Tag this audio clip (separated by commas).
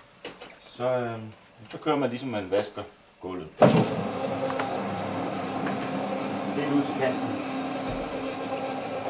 Speech